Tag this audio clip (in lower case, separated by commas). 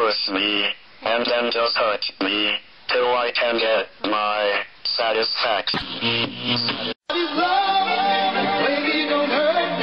singing, inside a small room